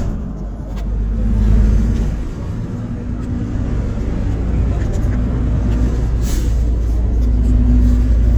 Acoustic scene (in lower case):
bus